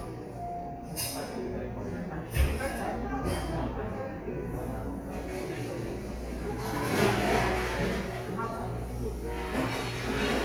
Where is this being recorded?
in a cafe